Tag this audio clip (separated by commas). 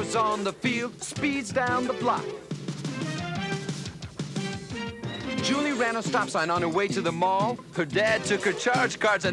Music